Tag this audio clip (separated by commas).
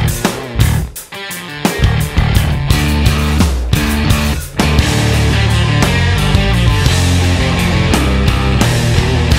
Music